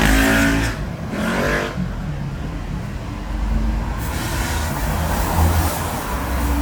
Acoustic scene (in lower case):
street